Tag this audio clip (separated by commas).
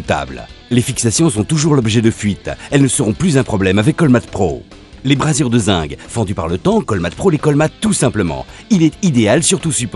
Music, Speech